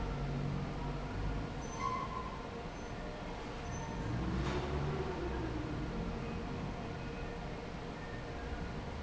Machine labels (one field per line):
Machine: fan